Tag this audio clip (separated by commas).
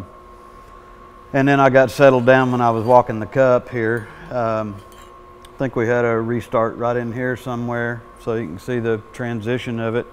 arc welding